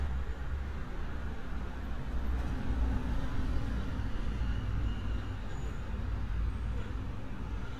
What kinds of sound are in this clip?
large-sounding engine